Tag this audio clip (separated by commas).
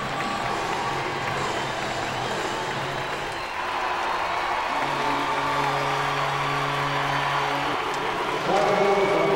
playing hockey